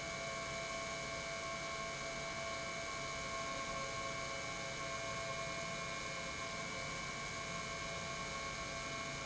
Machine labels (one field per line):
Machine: pump